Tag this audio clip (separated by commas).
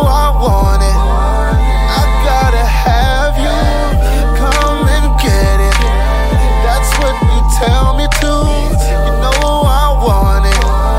Rhythm and blues, Hip hop music, Music